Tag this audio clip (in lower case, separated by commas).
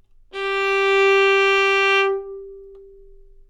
bowed string instrument, music, musical instrument